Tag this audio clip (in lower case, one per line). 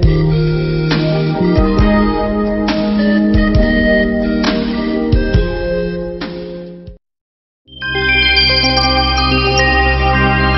music